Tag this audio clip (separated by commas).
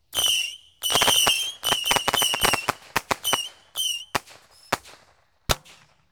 Fireworks, Explosion